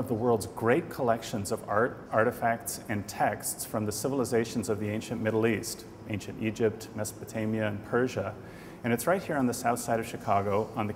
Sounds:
speech

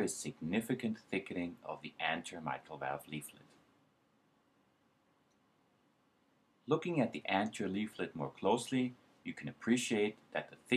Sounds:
speech

